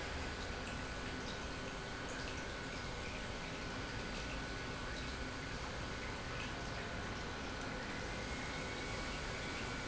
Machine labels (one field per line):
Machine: pump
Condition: normal